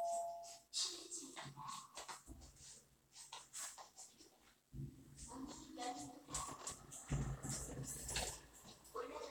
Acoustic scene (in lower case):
elevator